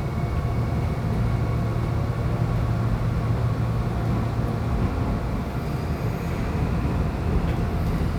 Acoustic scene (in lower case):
subway train